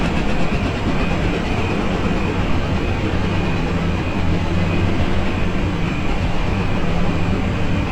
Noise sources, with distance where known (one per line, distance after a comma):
unidentified impact machinery, far